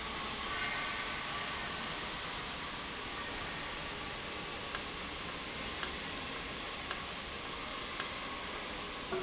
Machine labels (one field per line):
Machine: valve